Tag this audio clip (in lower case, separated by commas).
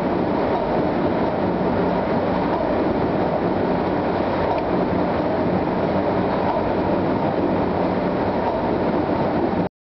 medium engine (mid frequency), engine